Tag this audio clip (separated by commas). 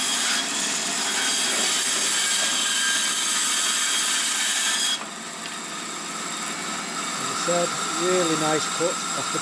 Speech, Tools